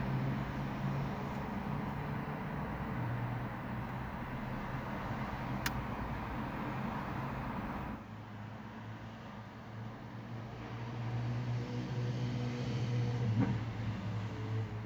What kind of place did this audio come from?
residential area